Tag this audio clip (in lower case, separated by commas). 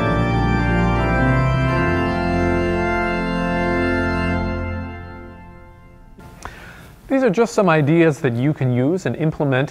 playing electronic organ